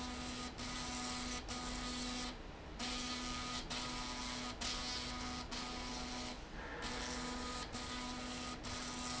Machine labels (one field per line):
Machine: slide rail